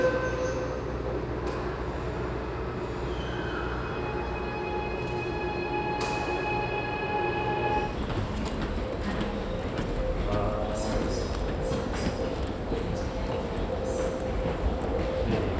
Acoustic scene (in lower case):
subway station